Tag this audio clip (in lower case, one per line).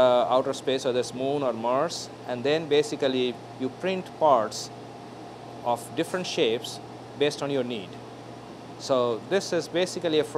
speech